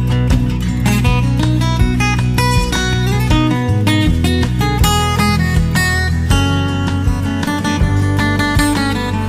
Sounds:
Music

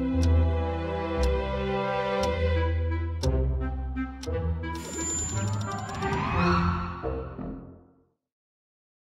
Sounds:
Tick-tock, Music, Tick

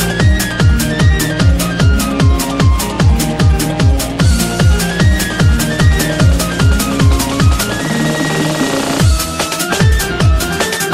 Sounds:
Music

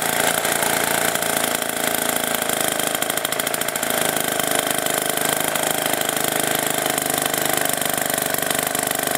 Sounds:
Lawn mower, Engine, lawn mowing

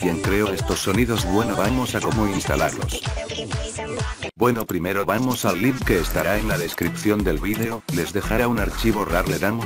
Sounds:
Speech, Music

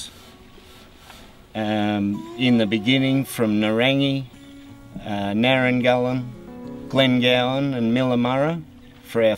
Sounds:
Music, Speech

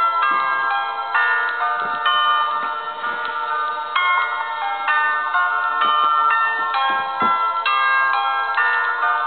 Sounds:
Music, inside a small room

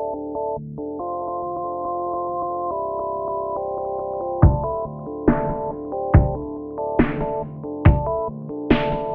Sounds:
Music, Electronic music, Dubstep

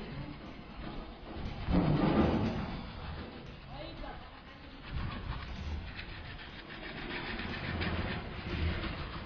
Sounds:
Speech

